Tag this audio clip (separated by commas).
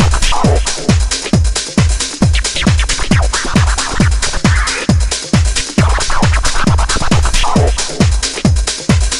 Music